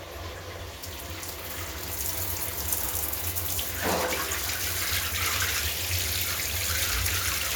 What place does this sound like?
restroom